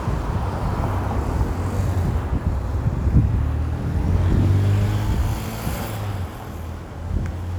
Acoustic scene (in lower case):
street